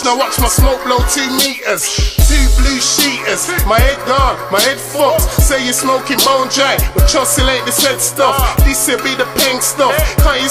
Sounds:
Music

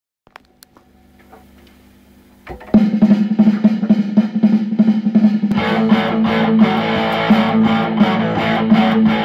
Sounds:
Heavy metal, Rimshot, Drum kit, Drum, Guitar, inside a small room, Plucked string instrument, Music, Musical instrument

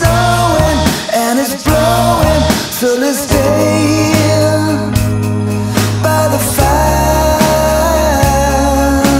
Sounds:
Christmas music

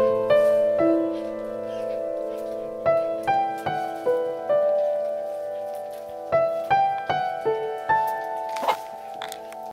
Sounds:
Fowl, Cluck, Chicken

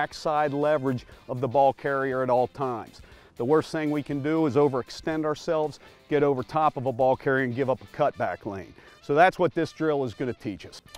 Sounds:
Music, Speech

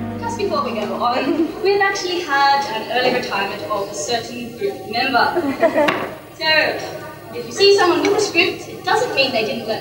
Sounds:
Music, Speech

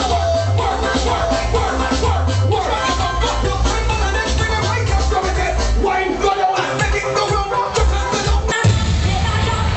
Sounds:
Music

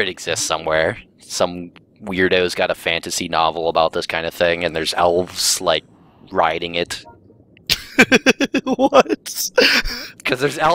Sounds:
Speech

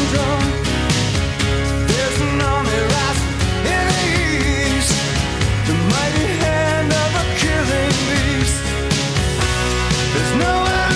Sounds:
Music

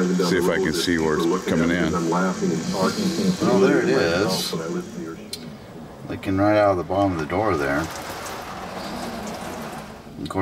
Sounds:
Speech

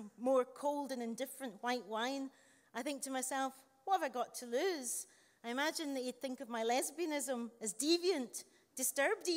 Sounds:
Speech

